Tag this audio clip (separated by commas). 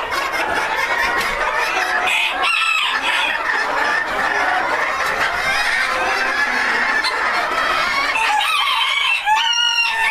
Chicken, cock-a-doodle-doo, Fowl, Cluck